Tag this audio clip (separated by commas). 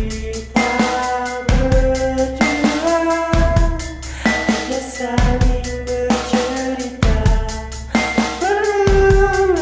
Music